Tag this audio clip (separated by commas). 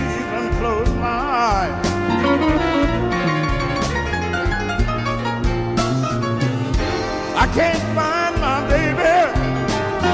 Music